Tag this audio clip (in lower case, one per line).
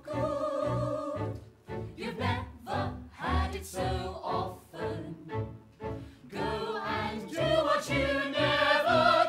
music